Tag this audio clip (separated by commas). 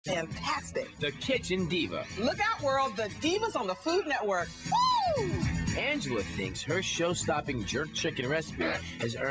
Music, Speech